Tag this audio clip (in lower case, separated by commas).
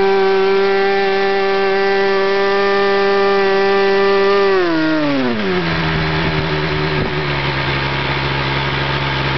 engine, idling, vroom